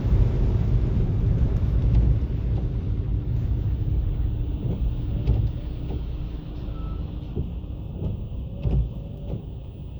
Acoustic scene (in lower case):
car